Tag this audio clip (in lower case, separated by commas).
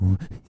respiratory sounds, breathing